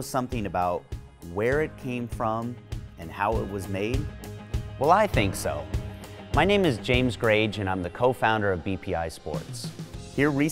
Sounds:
Music, Speech

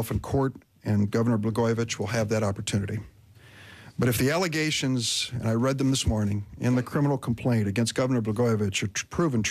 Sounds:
Speech

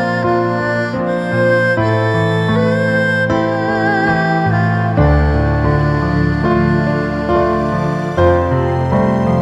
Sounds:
playing erhu

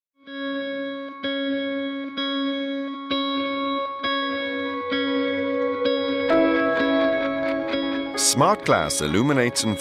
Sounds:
Speech, Music

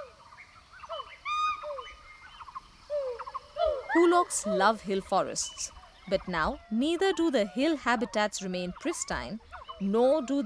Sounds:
gibbon howling

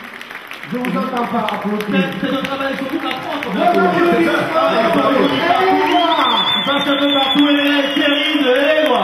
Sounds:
Speech

